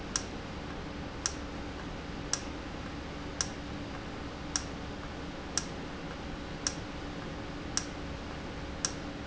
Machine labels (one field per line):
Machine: valve